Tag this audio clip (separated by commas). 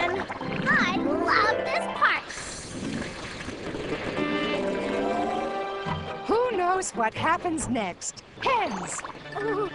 Speech, Music